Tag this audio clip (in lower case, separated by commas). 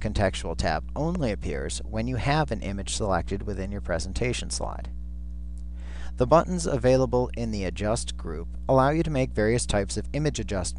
speech